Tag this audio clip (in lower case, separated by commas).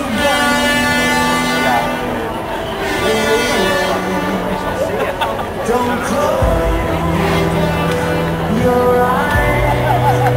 crowd, music